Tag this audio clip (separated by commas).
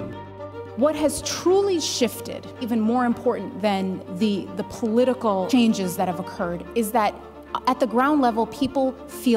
Music, Speech